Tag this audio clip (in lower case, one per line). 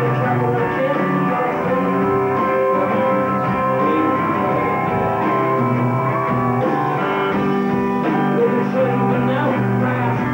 music